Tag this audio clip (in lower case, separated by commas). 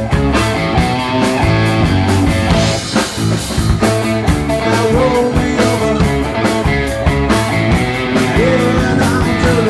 rock and roll, music